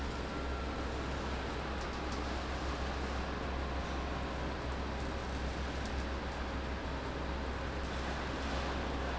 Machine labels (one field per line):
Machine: fan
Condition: abnormal